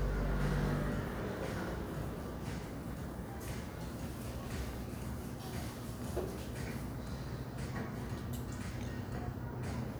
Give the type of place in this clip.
cafe